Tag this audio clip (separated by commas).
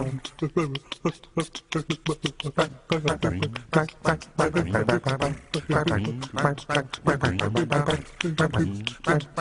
Honk